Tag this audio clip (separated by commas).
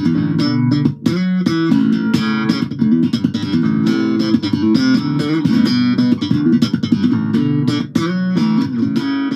playing electric guitar